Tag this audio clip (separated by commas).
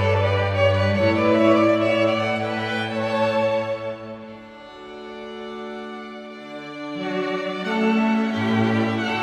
Classical music, Wedding music, Music